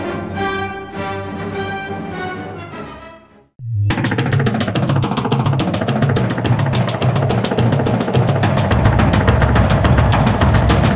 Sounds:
Sampler, Music

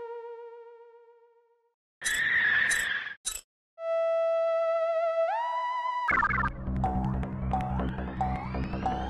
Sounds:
Music

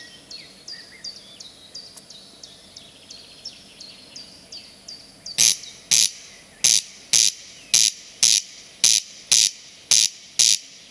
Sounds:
cuckoo bird calling

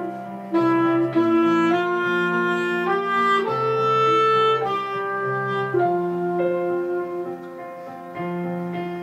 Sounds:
playing clarinet

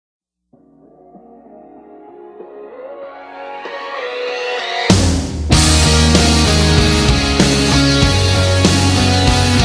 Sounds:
Music, Ambient music

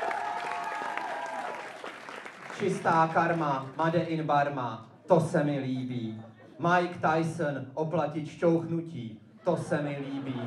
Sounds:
Speech

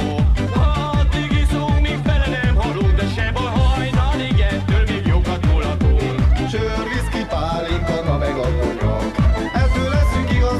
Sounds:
Music

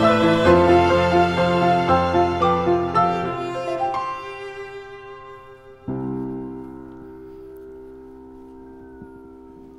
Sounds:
Bowed string instrument, fiddle

